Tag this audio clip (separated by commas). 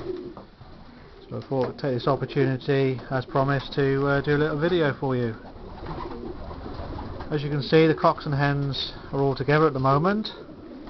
Coo, dove, bird song, Bird